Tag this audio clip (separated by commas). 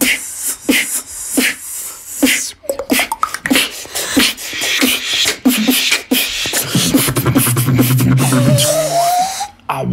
beat boxing